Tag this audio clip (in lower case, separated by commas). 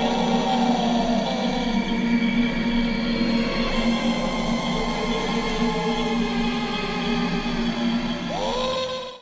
music